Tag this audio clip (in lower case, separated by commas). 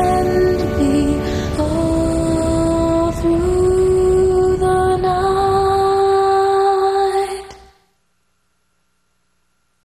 lullaby, music